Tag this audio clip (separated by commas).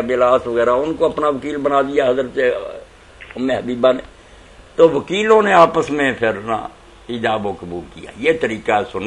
Speech